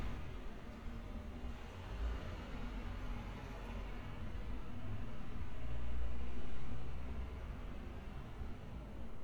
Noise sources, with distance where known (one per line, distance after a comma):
background noise